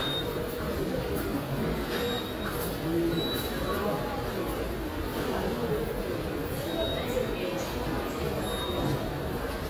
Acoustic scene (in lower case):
subway station